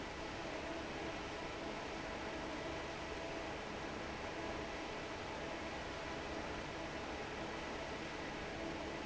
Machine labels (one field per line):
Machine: fan